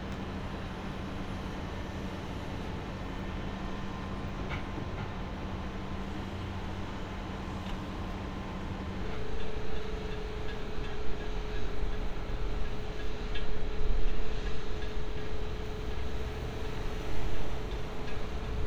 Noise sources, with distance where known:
engine of unclear size

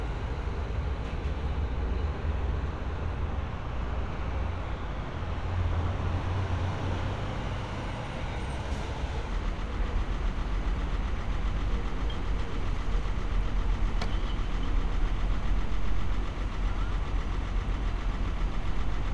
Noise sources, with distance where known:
medium-sounding engine

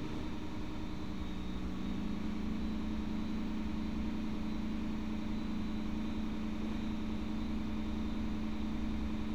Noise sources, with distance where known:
engine of unclear size, near

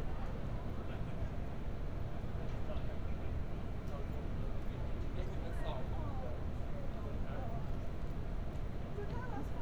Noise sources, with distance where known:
person or small group talking, far

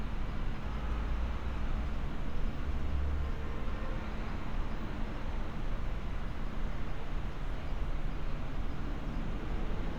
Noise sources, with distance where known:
engine of unclear size, far

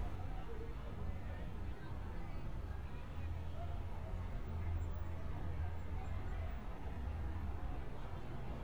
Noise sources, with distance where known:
background noise

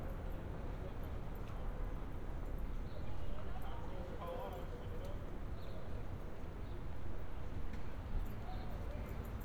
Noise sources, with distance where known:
unidentified human voice

